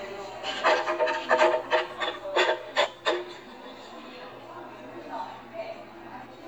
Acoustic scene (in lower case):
cafe